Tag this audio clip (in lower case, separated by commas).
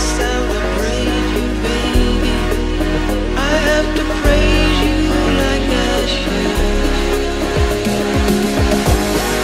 music, electronic dance music